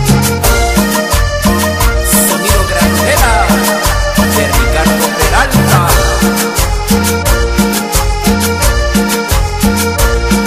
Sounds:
music, speech

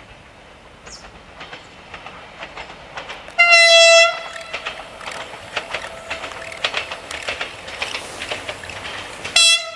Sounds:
vehicle, honking, rail transport, train wagon, train

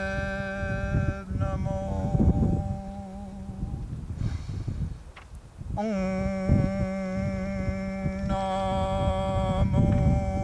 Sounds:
mantra

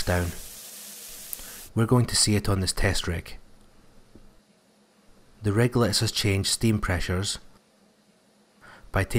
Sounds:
speech

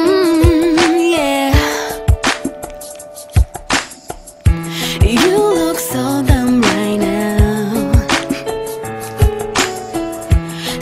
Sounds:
female singing, music

